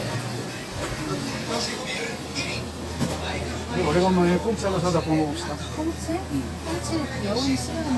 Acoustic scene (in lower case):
crowded indoor space